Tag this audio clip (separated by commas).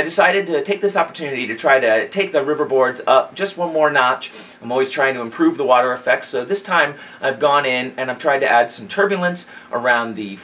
Speech